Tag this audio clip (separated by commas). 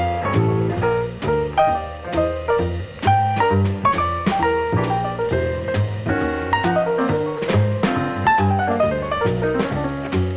Jazz, Music